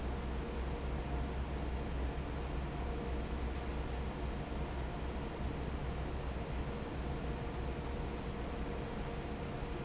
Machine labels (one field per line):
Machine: fan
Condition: normal